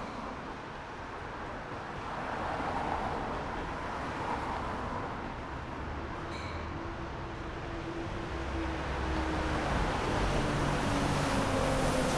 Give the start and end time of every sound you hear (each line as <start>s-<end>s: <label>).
0.0s-6.9s: car
0.0s-6.9s: car wheels rolling
6.3s-6.8s: bus compressor
6.3s-12.2s: bus
6.3s-12.2s: bus engine accelerating
6.9s-12.2s: car
6.9s-12.2s: car wheels rolling